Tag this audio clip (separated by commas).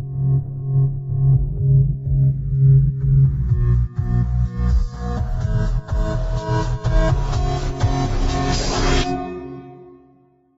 Electronica, Music